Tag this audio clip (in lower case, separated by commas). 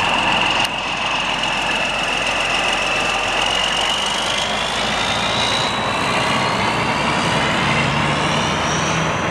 truck, vehicle